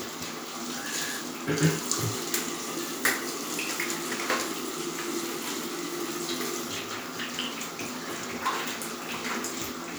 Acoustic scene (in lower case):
restroom